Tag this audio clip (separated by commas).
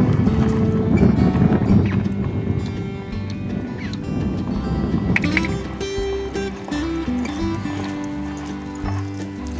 Animal, Music, Clip-clop, Horse